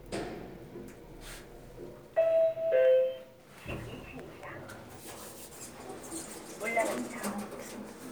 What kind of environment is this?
elevator